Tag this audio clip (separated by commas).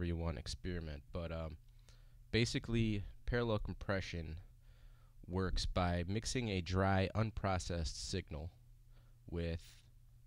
Speech